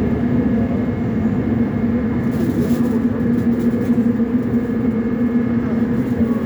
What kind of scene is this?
subway train